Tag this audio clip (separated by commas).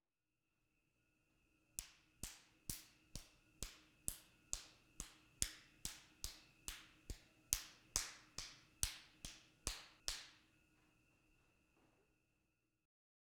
Hands